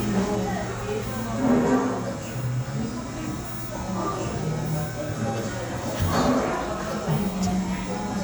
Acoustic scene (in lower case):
cafe